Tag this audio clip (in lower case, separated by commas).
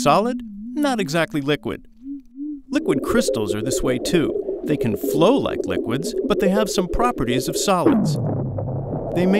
liquid, music, speech